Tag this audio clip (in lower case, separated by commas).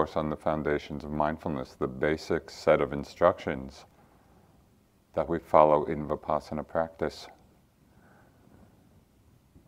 speech